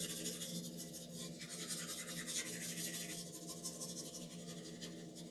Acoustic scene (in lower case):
restroom